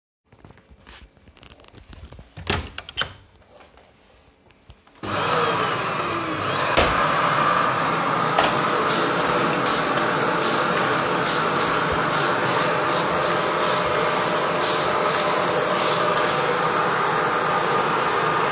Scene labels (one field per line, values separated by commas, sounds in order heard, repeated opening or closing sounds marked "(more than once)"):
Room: hallway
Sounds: door, vacuum cleaner